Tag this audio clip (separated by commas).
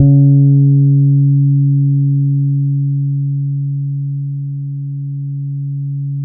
Music, Musical instrument, Bass guitar, Guitar, Plucked string instrument